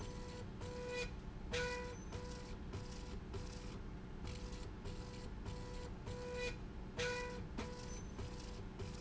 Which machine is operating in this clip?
slide rail